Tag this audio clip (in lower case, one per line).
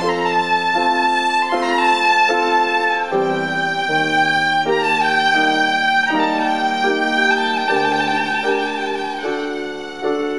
musical instrument
music
violin